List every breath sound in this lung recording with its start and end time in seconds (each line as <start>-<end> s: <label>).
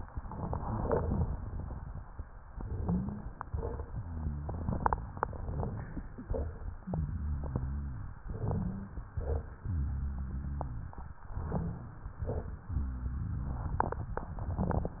2.45-3.28 s: inhalation
2.73-3.30 s: wheeze
3.44-4.00 s: exhalation
3.89-4.71 s: rhonchi
5.22-6.22 s: inhalation
5.22-6.22 s: crackles
6.22-6.83 s: exhalation
6.26-6.83 s: crackles
6.83-8.14 s: rhonchi
8.29-9.13 s: inhalation
8.43-8.96 s: wheeze
9.13-9.66 s: exhalation
9.64-10.95 s: rhonchi
11.33-12.16 s: inhalation
11.42-11.84 s: wheeze
12.24-12.66 s: exhalation
12.71-14.02 s: rhonchi